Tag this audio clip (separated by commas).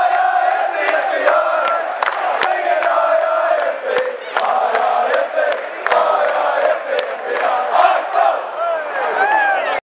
Speech, Mantra